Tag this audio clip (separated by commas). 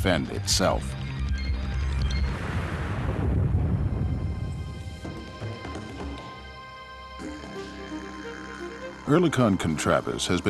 Speech, Music